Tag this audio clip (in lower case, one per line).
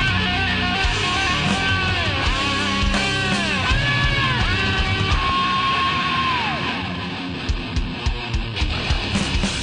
heavy metal
music